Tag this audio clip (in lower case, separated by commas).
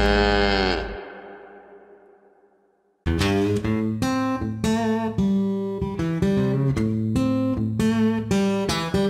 music